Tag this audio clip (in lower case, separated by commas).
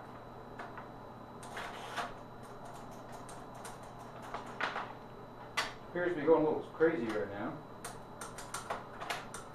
speech, typewriter